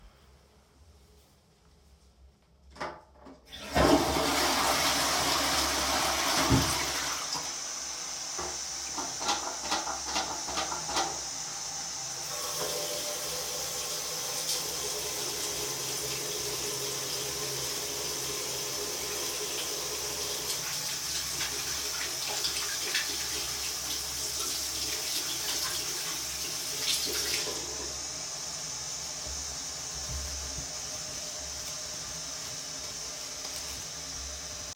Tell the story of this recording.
I flushed the toilet, then washed my hands with soap. After that I dried my hands with a towel.